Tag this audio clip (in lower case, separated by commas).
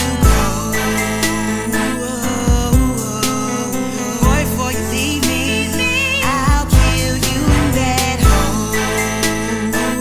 music, blues